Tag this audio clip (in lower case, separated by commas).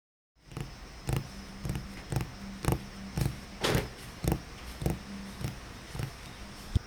tap